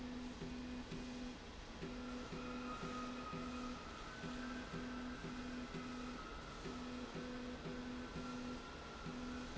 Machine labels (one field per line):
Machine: slide rail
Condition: normal